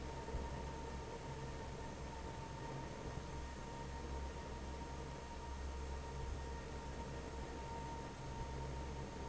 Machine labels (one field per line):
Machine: fan